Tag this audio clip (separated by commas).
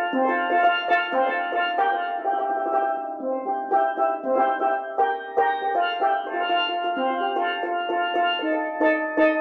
playing steelpan